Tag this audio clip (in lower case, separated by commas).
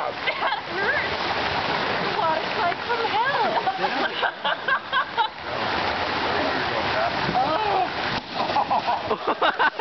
gurgling, stream, speech